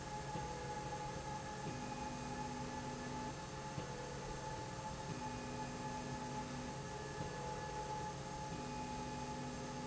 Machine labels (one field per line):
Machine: slide rail